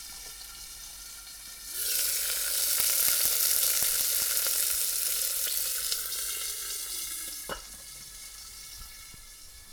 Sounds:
Frying (food), home sounds

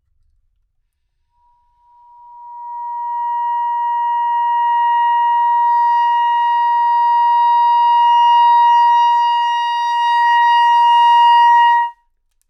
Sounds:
Wind instrument, Music, Musical instrument

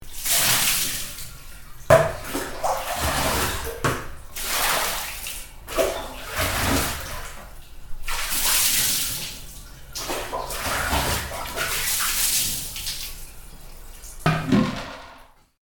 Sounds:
home sounds, Bathtub (filling or washing)

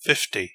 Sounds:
Human voice, Speech, man speaking

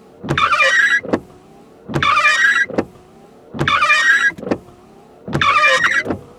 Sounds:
Car, Motor vehicle (road), Vehicle

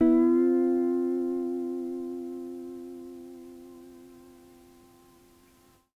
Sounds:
Guitar, Music, Musical instrument, Plucked string instrument

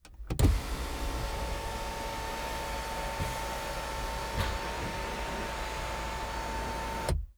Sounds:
Mechanisms

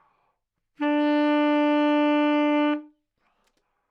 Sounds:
Musical instrument, woodwind instrument, Music

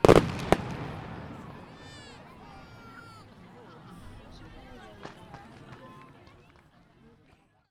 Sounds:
Fireworks, Explosion, Human group actions, Crowd

